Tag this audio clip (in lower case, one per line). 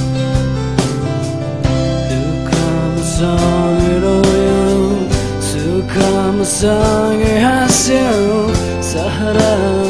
music